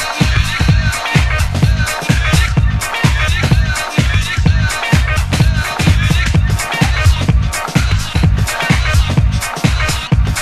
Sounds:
House music, Music, Electronic music

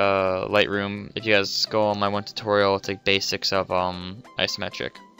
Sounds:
Music, Speech

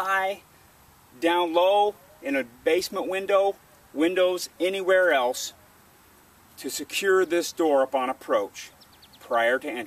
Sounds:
Speech

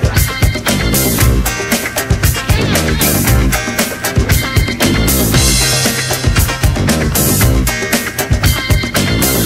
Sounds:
Music

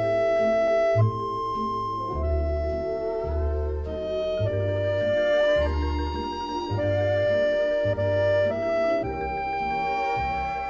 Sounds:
Music

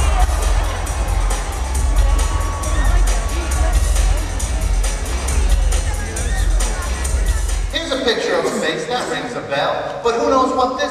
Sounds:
Speech, Music, man speaking

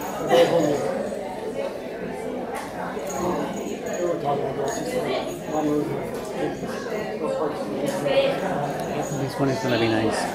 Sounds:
Speech

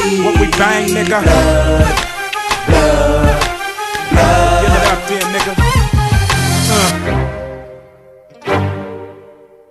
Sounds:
Music, Rhythm and blues

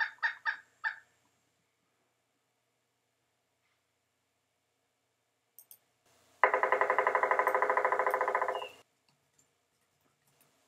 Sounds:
woodpecker pecking tree

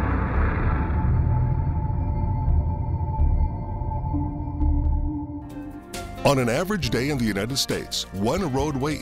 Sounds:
Speech, Rumble, Music

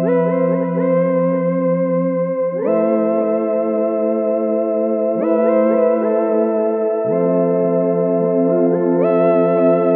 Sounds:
Music

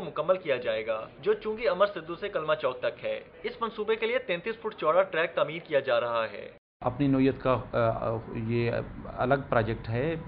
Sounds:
Speech

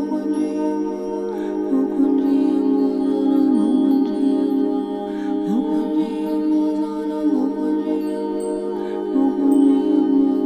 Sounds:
Mantra, Music

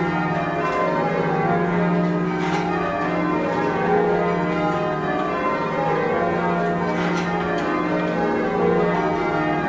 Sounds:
Music

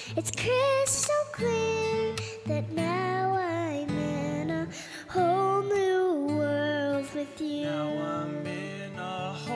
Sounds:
child singing

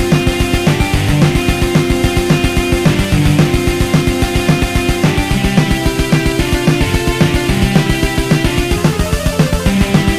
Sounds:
Music, Electric guitar, Guitar, Musical instrument, Plucked string instrument

